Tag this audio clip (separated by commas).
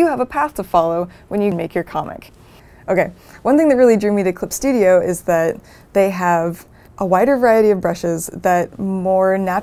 Speech